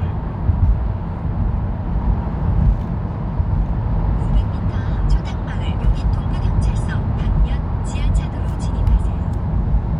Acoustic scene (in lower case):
car